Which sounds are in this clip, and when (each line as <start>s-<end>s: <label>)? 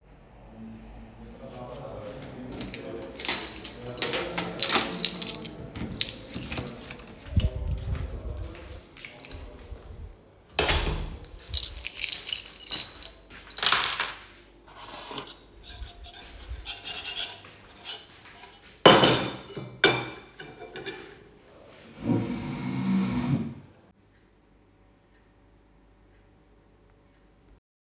2.9s-8.1s: keys
4.3s-7.2s: door
10.4s-11.2s: door
11.2s-14.4s: keys
14.7s-21.3s: cutlery and dishes